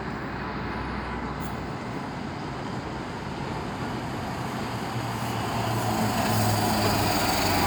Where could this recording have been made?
on a street